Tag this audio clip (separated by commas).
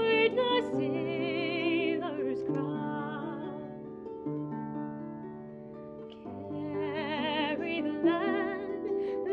Music, Harp